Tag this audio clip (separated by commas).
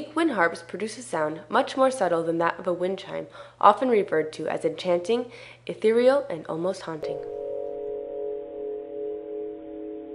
Music, Speech